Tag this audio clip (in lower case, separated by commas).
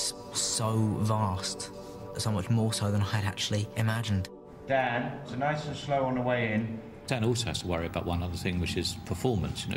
speech, music